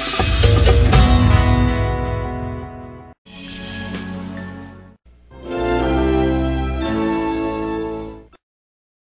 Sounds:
Music

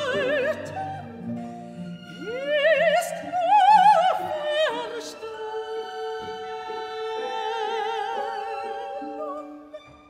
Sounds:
Opera, Music, Orchestra

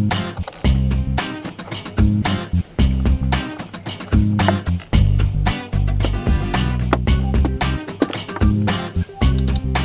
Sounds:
Music

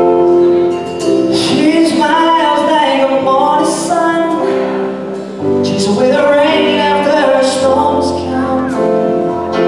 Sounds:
Male singing, Music

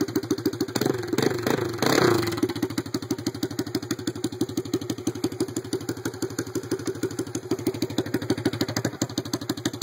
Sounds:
outside, urban or man-made, Vehicle, Motorcycle

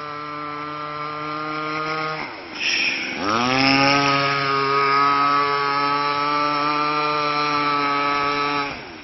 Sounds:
Vehicle, speedboat

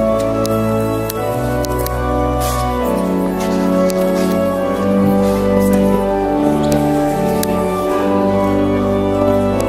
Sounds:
Walk, Music

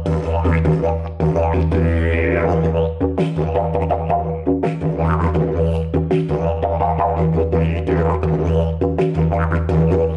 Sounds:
playing didgeridoo

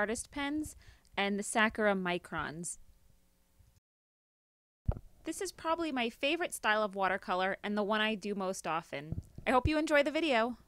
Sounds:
Speech

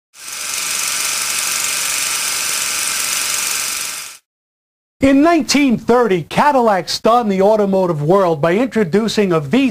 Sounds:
Rattle, inside a small room, Speech

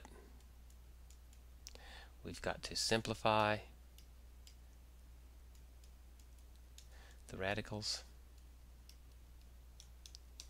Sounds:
Speech

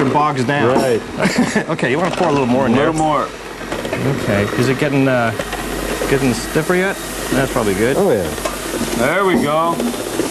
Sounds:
Speech

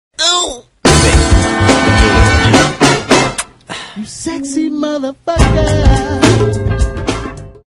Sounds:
Music, Speech

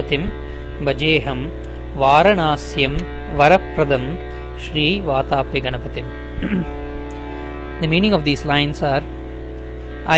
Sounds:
Music, Speech

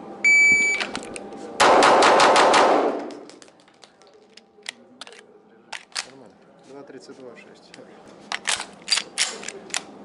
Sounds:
cap gun shooting

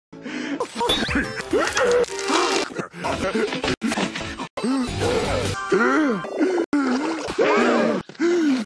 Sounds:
Gasp, Music

